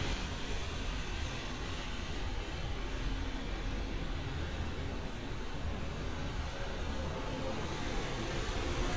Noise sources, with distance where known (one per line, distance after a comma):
engine of unclear size